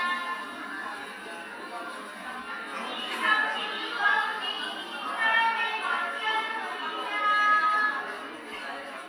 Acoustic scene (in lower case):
cafe